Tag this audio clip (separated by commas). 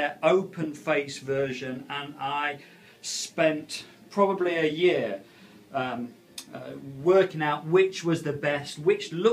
Speech